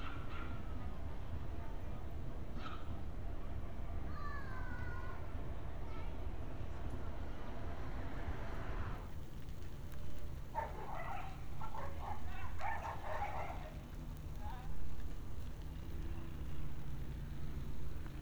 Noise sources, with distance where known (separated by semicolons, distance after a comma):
person or small group shouting; dog barking or whining